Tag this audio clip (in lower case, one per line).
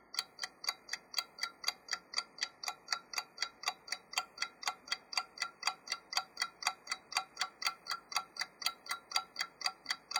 mechanisms
clock
tick-tock